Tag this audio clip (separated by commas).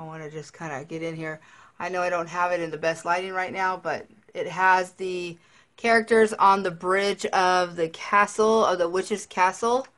Speech